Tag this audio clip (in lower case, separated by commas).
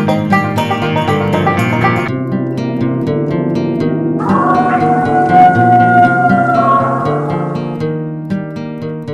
inside a small room, music